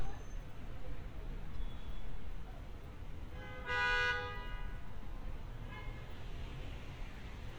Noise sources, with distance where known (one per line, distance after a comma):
car horn, near
person or small group talking, far